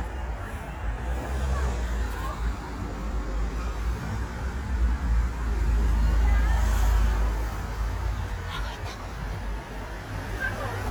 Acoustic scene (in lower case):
street